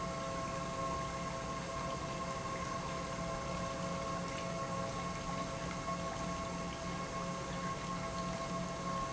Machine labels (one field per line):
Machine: pump